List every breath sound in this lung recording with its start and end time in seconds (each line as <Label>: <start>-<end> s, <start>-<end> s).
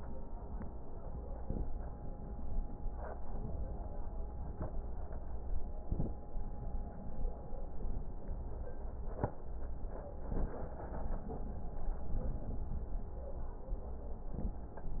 Inhalation: 1.35-1.72 s, 5.80-6.18 s, 10.29-10.66 s, 14.28-14.65 s